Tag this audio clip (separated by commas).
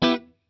Plucked string instrument, Guitar, Music, Musical instrument